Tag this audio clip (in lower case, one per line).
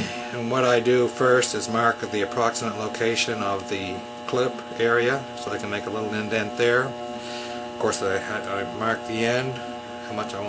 speech